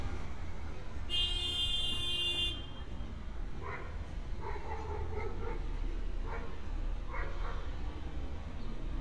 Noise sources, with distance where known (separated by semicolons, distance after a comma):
car horn, far; dog barking or whining, far